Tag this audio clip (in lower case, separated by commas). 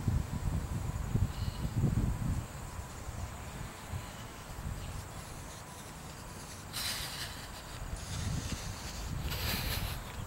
run